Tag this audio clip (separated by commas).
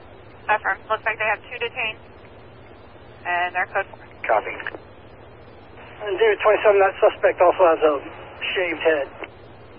police radio chatter